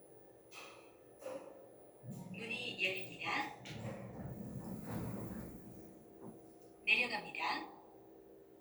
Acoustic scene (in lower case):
elevator